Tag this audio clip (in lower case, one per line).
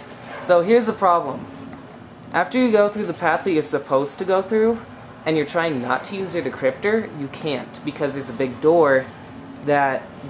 speech